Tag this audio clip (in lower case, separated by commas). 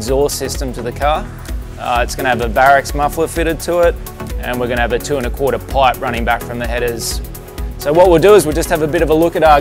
music, speech